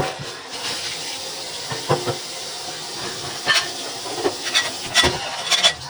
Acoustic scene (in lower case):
kitchen